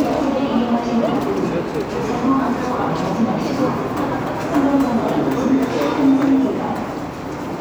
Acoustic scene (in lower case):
subway station